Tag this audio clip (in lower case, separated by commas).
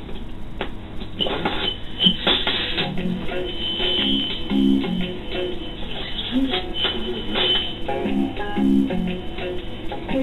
music, radio